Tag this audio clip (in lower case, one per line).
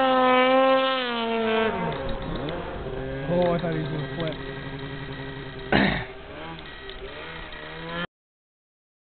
speech